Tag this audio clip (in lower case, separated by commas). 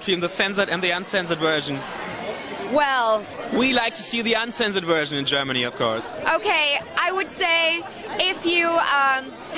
speech